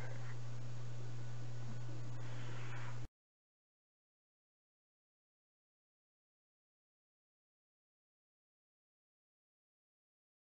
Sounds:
silence

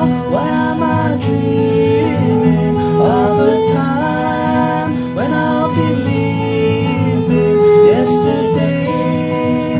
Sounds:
music, christmas music, country

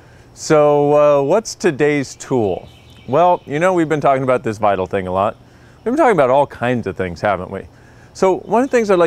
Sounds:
speech

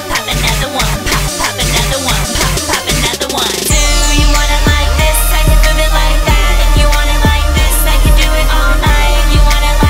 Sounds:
music

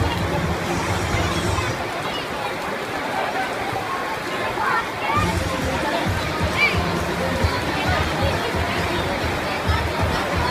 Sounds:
music, rain on surface

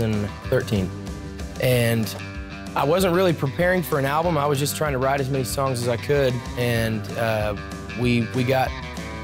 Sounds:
speech, music

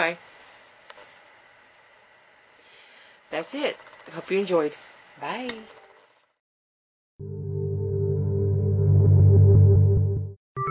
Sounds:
music, ambient music, speech

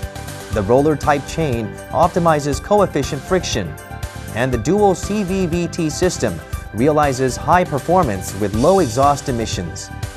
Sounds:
music, speech

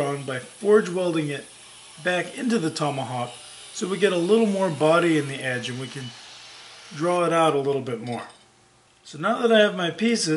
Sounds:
speech

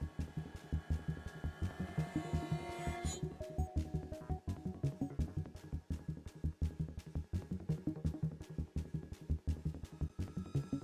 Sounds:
tender music, music

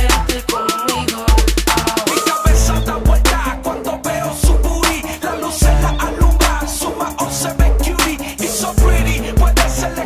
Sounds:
music

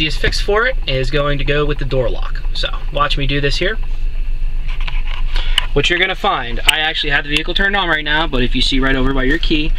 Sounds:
speech

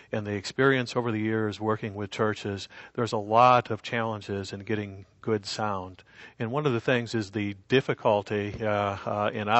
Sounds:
speech

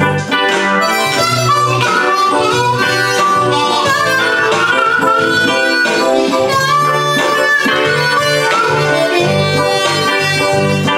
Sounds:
musical instrument, piano, harmonica, keyboard (musical), music

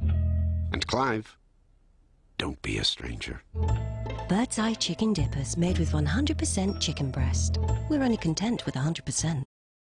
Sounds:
music, speech

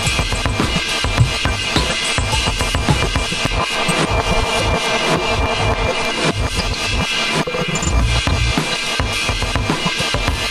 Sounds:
percussion, drum, bass drum

